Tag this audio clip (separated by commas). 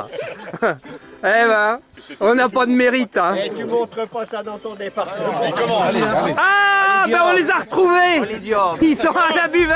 Music, Speech